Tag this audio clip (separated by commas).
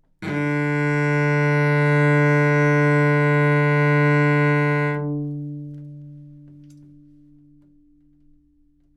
Bowed string instrument, Music, Musical instrument